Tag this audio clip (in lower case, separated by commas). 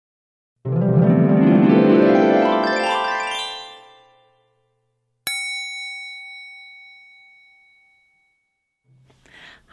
music, speech